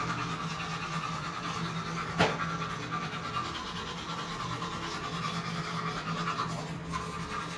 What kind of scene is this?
restroom